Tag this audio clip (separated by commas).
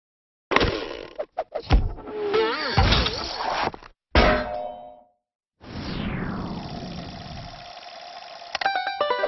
Clang